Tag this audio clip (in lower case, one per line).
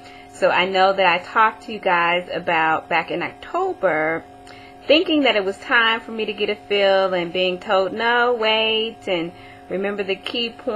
speech